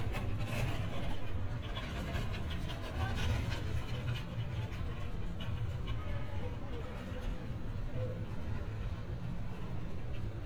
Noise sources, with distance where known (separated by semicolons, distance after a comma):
person or small group talking, far